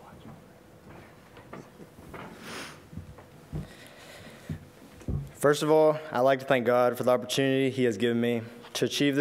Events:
0.0s-9.2s: background noise
5.3s-6.0s: man speaking
6.1s-8.4s: man speaking

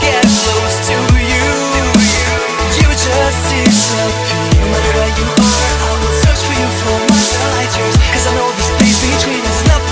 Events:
0.0s-9.9s: male singing
0.0s-9.9s: music

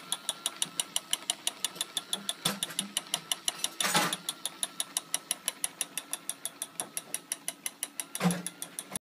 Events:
0.0s-9.0s: gears
1.7s-1.9s: generic impact sounds
2.1s-2.3s: generic impact sounds
2.4s-3.0s: generic impact sounds
3.8s-4.2s: generic impact sounds
6.8s-7.0s: generic impact sounds
8.2s-8.5s: generic impact sounds

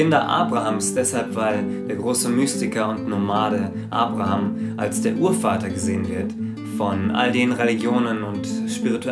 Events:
0.0s-1.6s: male speech
0.0s-9.1s: music
1.6s-1.8s: breathing
1.8s-2.9s: male speech
3.0s-3.6s: male speech
3.7s-3.9s: breathing
3.9s-4.5s: male speech
4.5s-4.7s: breathing
4.7s-6.3s: male speech
6.3s-6.5s: breathing
6.7s-8.3s: male speech
8.4s-9.1s: male speech

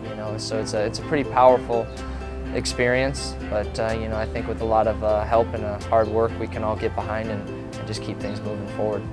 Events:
0.0s-9.1s: music
0.1s-1.8s: male speech
2.5s-7.5s: male speech
7.7s-9.0s: male speech

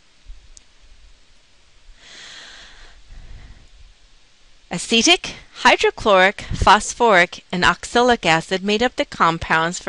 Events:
0.0s-9.8s: background noise
0.3s-0.4s: wind noise (microphone)
0.5s-0.6s: tick
1.9s-2.9s: breathing
3.0s-3.9s: wind noise (microphone)
3.0s-3.6s: breathing
4.7s-5.3s: female speech
5.6s-6.3s: female speech
5.9s-6.0s: wind noise (microphone)
6.4s-6.7s: wind noise (microphone)
6.6s-7.4s: female speech
7.5s-9.8s: female speech

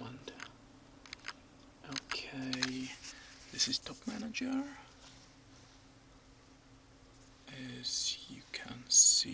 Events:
0.0s-0.5s: male speech
0.0s-9.3s: mechanisms
0.2s-0.5s: computer keyboard
1.0s-1.3s: computer keyboard
1.6s-1.7s: tick
1.8s-2.2s: computer keyboard
1.8s-2.9s: male speech
2.4s-2.7s: computer keyboard
2.4s-4.2s: surface contact
3.5s-4.7s: male speech
4.5s-4.6s: computer keyboard
4.9s-5.3s: generic impact sounds
5.5s-5.8s: generic impact sounds
7.4s-9.3s: male speech

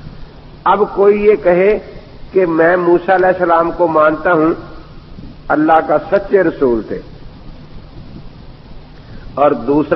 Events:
0.0s-9.9s: mechanisms
0.0s-0.3s: wind noise (microphone)
0.6s-9.9s: monologue
0.7s-1.8s: man speaking
1.6s-1.7s: tick
1.9s-2.1s: wind noise (microphone)
2.3s-4.7s: man speaking
3.1s-3.3s: tick
5.1s-5.4s: wind noise (microphone)
5.5s-7.0s: man speaking
5.6s-5.8s: generic impact sounds
6.1s-6.2s: tick
7.2s-8.3s: wind noise (microphone)
9.0s-9.3s: breathing
9.0s-9.4s: wind noise (microphone)
9.3s-9.9s: man speaking

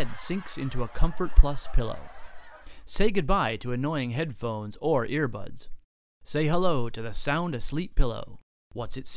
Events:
0.0s-1.9s: male speech
0.0s-2.8s: laughter
2.6s-2.8s: breathing
2.8s-5.7s: male speech
5.7s-5.7s: tick
6.2s-8.4s: male speech
8.3s-8.4s: tick
8.7s-8.7s: tick
8.7s-9.1s: male speech

